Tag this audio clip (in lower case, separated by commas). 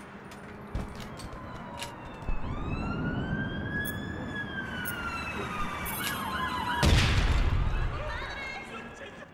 siren, police car (siren), ambulance (siren), emergency vehicle